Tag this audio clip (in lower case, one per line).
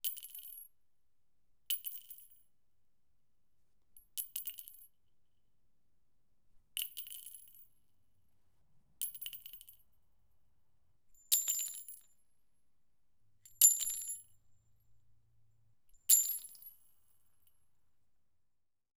glass
chink